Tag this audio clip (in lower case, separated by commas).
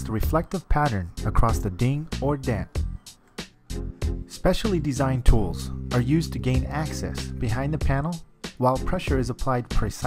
music, speech